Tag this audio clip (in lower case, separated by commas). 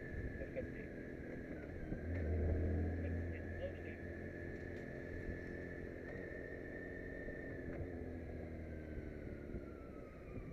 vehicle, speech